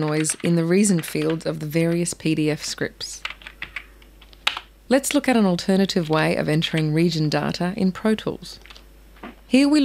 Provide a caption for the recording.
A woman speaks while types a keyboard